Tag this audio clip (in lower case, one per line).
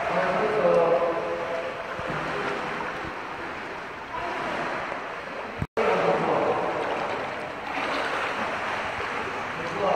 swimming